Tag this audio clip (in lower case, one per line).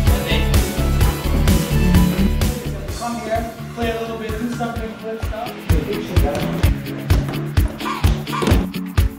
speech
music